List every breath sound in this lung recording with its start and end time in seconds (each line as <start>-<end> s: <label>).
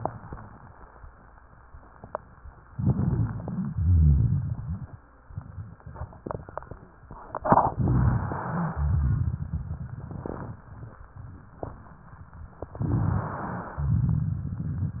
2.70-3.71 s: inhalation
2.70-3.71 s: stridor
3.71-5.00 s: exhalation
3.71-5.00 s: rhonchi
7.72-8.75 s: inhalation
7.72-8.75 s: rhonchi
8.75-10.62 s: exhalation
8.75-10.62 s: crackles
12.70-13.77 s: inhalation
12.74-13.65 s: crackles
13.75-15.00 s: exhalation
13.75-15.00 s: crackles